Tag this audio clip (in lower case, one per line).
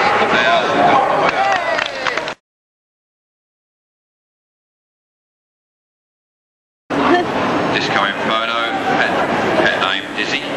speech